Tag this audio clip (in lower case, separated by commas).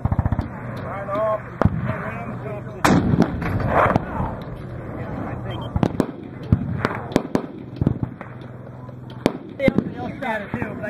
firing cannon